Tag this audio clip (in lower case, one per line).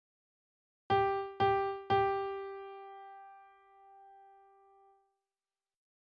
music
piano
musical instrument
keyboard (musical)